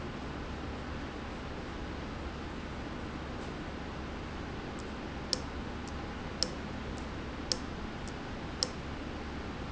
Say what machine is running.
valve